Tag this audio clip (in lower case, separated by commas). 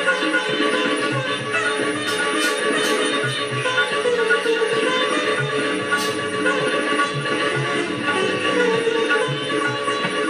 playing sitar